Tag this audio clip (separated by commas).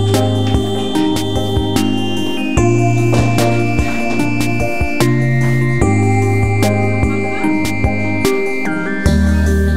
Music